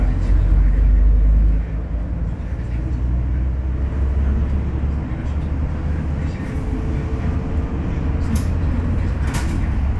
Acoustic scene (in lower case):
bus